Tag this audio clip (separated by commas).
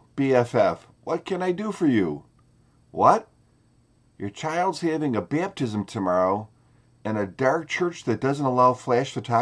Speech